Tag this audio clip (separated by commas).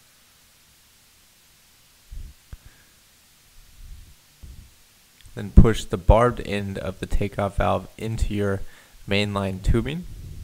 Speech